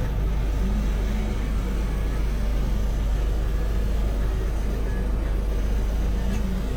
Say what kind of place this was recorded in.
bus